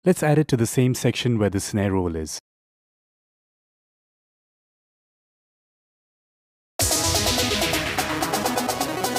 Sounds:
music, speech

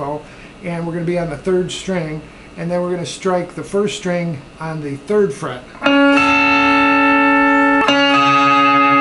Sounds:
music, speech

